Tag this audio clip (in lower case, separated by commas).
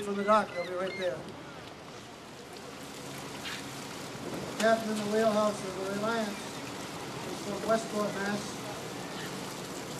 vehicle, boat, speech, ship